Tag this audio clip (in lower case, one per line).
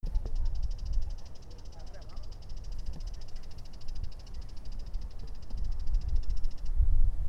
wild animals
bird vocalization
bird
animal